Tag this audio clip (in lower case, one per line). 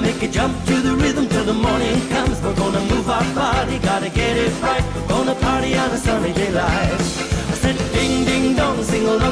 music